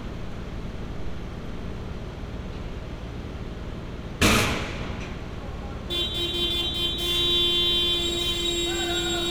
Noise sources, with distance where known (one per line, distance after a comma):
unidentified impact machinery, near
car horn, near